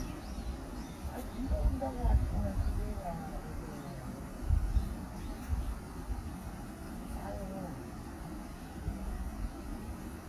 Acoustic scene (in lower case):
park